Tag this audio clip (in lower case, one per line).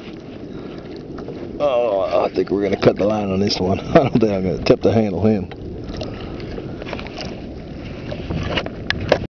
speech